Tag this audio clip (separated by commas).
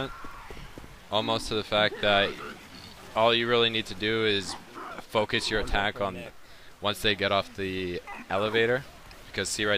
Speech